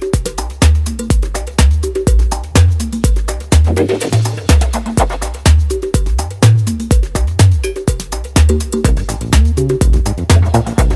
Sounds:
Music

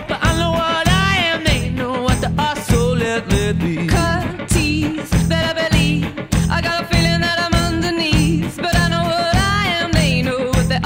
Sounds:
Pop music, Music

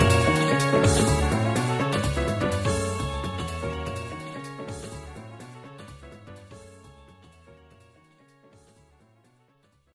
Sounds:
Music, Theme music

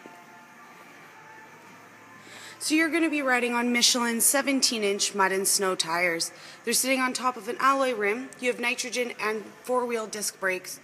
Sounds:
Speech

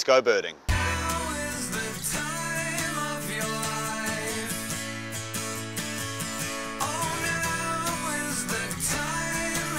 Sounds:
Speech, Music

